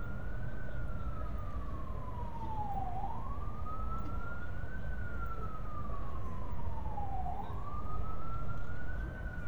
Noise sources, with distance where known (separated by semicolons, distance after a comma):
siren, far